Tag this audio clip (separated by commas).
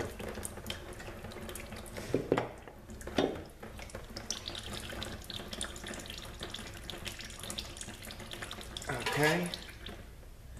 Speech, inside a small room